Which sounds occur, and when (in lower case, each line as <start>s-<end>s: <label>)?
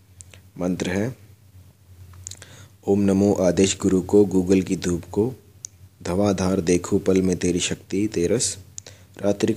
0.0s-9.5s: mechanisms
0.5s-1.1s: man speaking
2.7s-5.4s: man speaking
6.0s-8.6s: man speaking
9.1s-9.5s: man speaking